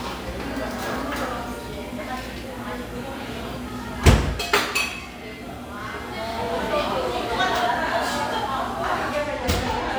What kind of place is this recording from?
cafe